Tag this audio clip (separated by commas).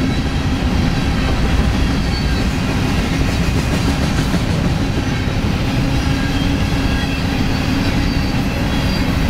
Vehicle